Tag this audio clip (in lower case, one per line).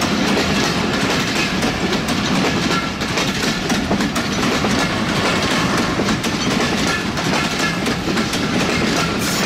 train whistling